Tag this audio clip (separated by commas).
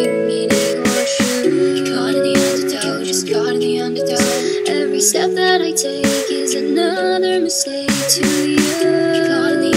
Music, Dubstep